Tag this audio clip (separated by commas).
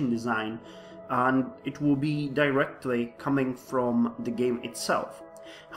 Speech, Music